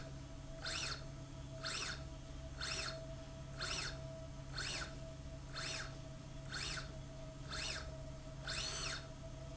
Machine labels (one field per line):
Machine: slide rail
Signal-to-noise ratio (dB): 6 dB